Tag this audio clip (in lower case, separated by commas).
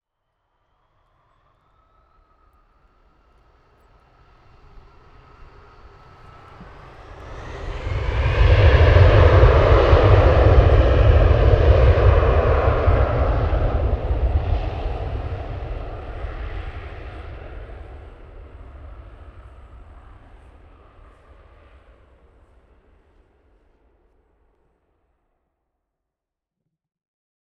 aircraft, vehicle